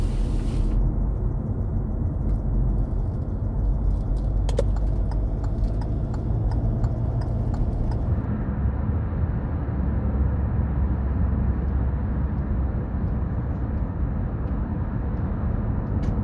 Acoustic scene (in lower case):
car